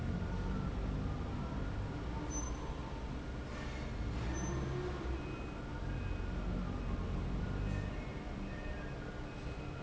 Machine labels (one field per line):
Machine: fan